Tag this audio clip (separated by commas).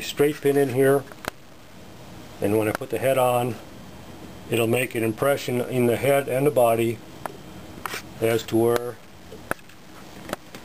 Speech